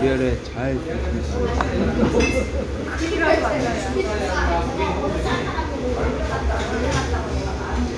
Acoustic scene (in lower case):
restaurant